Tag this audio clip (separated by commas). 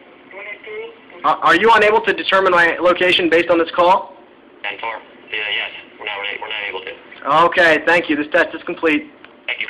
Telephone